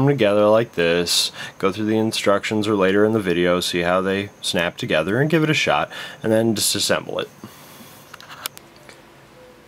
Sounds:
Speech

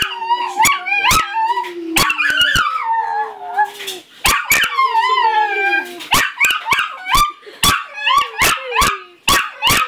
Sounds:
Howl, Animal, Dog, Domestic animals

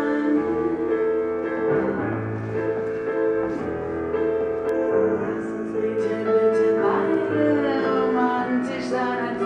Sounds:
Classical music

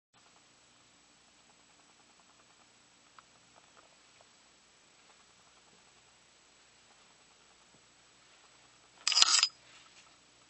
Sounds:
inside a small room

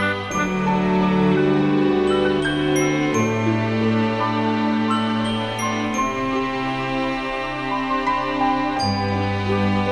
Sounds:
Music, Background music

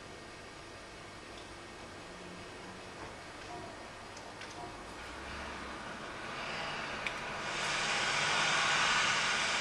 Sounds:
Vehicle

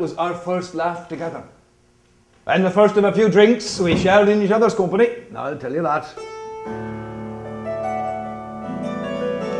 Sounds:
Music, Folk music, Speech

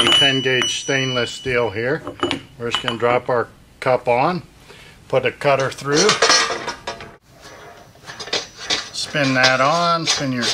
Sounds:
Tools, Speech

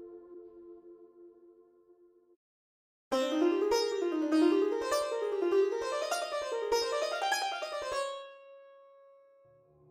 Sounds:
Music

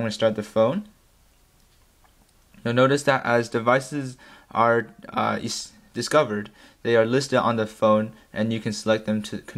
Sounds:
Speech

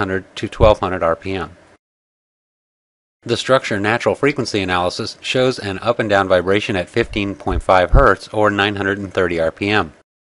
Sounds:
Speech

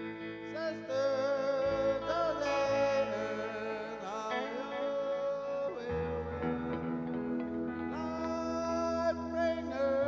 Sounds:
Music

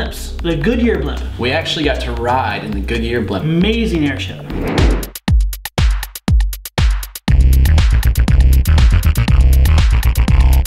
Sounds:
Drum machine

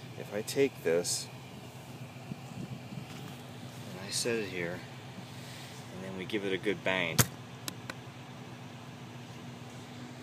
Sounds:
Speech

